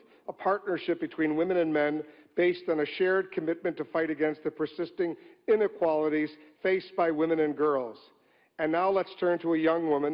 A man is giving a speech